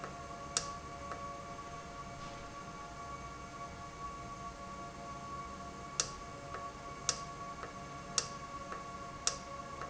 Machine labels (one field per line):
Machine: valve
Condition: normal